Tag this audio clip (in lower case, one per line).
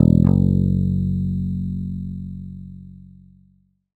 bass guitar
guitar
musical instrument
plucked string instrument
music